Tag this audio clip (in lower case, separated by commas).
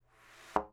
thud